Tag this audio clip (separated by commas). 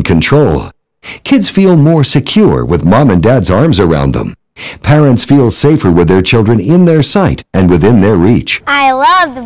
Speech